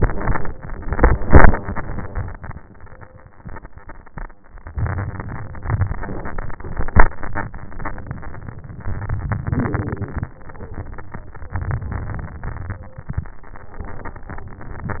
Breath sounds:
4.69-5.75 s: inhalation
5.80-6.86 s: exhalation
8.90-10.31 s: inhalation
10.30-11.49 s: exhalation
11.54-12.95 s: inhalation
13.86-15.00 s: exhalation

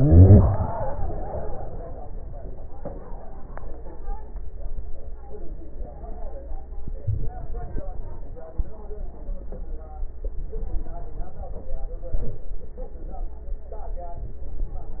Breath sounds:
7.01-7.36 s: inhalation
14.12-14.47 s: inhalation

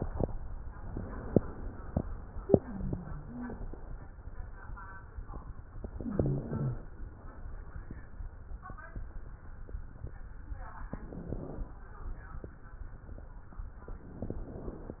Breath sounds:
2.54-3.68 s: wheeze
5.90-6.87 s: inhalation
5.90-6.87 s: wheeze
10.89-11.82 s: inhalation
14.13-15.00 s: inhalation

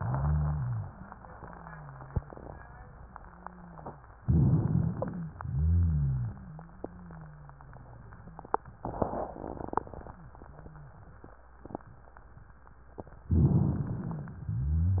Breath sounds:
0.00-0.93 s: rhonchi
1.40-4.14 s: rhonchi
4.19-5.33 s: inhalation
4.19-5.33 s: rhonchi
5.39-6.53 s: exhalation
5.39-8.24 s: rhonchi
13.32-14.40 s: inhalation

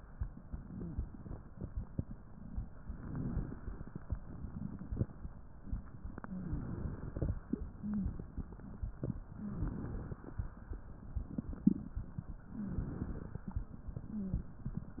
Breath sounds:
0.71-1.01 s: wheeze
2.86-4.01 s: inhalation
6.23-7.38 s: inhalation
6.25-6.69 s: wheeze
7.74-8.18 s: wheeze
9.21-10.22 s: inhalation
12.46-13.43 s: inhalation
12.52-12.82 s: wheeze
14.11-14.51 s: wheeze

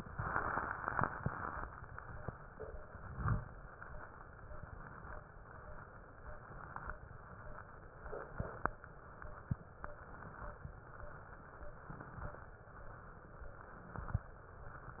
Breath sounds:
0.00-0.82 s: inhalation
0.86-1.68 s: exhalation

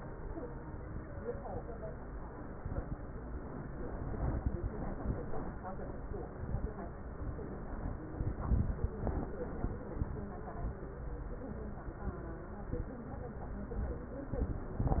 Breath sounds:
2.55-3.20 s: exhalation
2.55-3.20 s: crackles
4.01-4.67 s: inhalation
4.01-4.67 s: crackles
8.23-8.88 s: inhalation
8.23-8.88 s: crackles

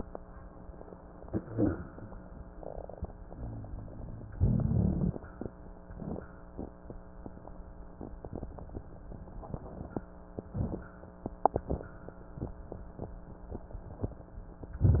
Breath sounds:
1.12-2.50 s: inhalation
1.40-1.79 s: wheeze
2.50-3.38 s: crackles
2.50-4.32 s: exhalation
3.37-4.33 s: wheeze
4.35-5.74 s: inhalation
4.35-5.74 s: crackles
5.76-7.17 s: exhalation
5.76-7.17 s: crackles
10.39-11.57 s: inhalation
10.39-11.57 s: crackles
11.57-12.96 s: exhalation
11.57-12.96 s: crackles

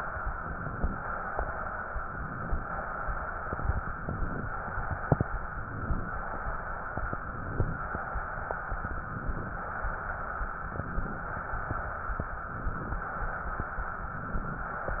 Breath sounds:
0.34-0.97 s: inhalation
1.00-2.00 s: exhalation
2.05-2.69 s: inhalation
2.67-3.68 s: exhalation
3.83-4.46 s: inhalation
4.45-5.39 s: exhalation
5.46-6.10 s: inhalation
6.10-7.03 s: exhalation
7.10-7.80 s: inhalation
7.84-8.76 s: exhalation
8.85-9.55 s: inhalation
9.59-10.52 s: exhalation
10.65-11.35 s: inhalation
11.35-12.27 s: exhalation
12.35-13.04 s: inhalation
13.04-13.97 s: exhalation
14.00-14.70 s: inhalation
14.68-15.00 s: exhalation

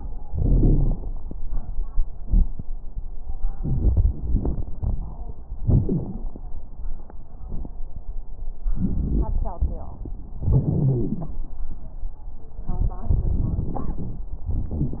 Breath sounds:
0.28-1.03 s: exhalation
0.28-1.03 s: crackles
3.55-5.21 s: inhalation
3.55-5.21 s: crackles
5.58-6.15 s: wheeze
5.58-6.32 s: exhalation
8.71-9.88 s: inhalation
8.71-9.88 s: crackles
10.43-11.38 s: exhalation
10.43-11.38 s: wheeze
12.71-14.35 s: inhalation
12.71-14.35 s: crackles
14.52-15.00 s: exhalation
14.52-15.00 s: wheeze

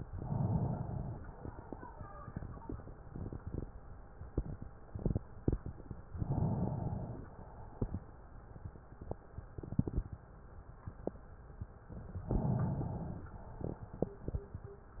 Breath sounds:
0.00-1.21 s: inhalation
1.21-2.05 s: exhalation
6.07-7.28 s: inhalation
7.28-8.03 s: exhalation
12.26-13.38 s: inhalation
13.38-14.15 s: exhalation

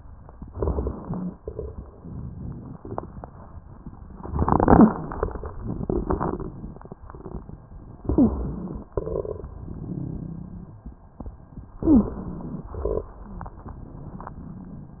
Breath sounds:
0.44-1.35 s: inhalation
0.44-1.35 s: crackles
1.37-2.79 s: crackles
1.41-1.81 s: exhalation
8.03-8.62 s: wheeze
8.03-8.88 s: inhalation
8.94-10.82 s: crackles
8.96-9.52 s: exhalation
11.80-12.18 s: wheeze
11.80-12.70 s: inhalation
12.77-15.00 s: crackles

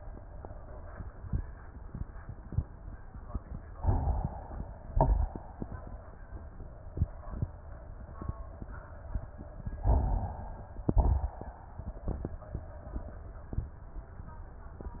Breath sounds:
3.78-4.86 s: inhalation
4.90-5.41 s: exhalation
4.90-5.41 s: crackles
9.73-10.82 s: inhalation
10.89-11.40 s: exhalation
10.89-11.40 s: crackles

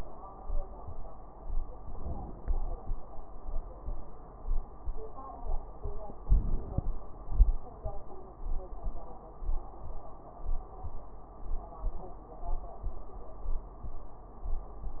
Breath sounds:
1.81-2.85 s: inhalation
6.24-6.90 s: inhalation

